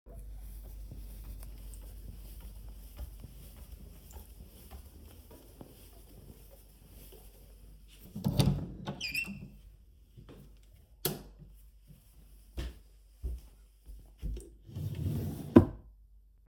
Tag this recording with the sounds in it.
footsteps, door, light switch, wardrobe or drawer